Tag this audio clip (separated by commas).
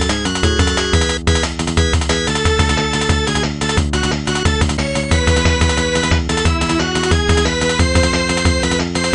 Music